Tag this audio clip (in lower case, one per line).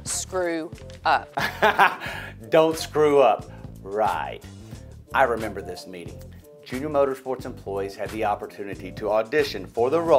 speech
music